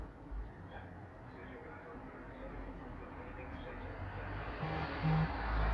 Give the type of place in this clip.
street